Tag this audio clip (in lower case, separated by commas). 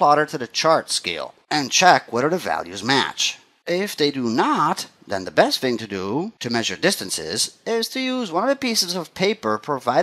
narration, speech